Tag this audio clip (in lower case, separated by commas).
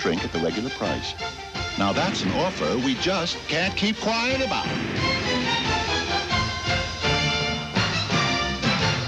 music, speech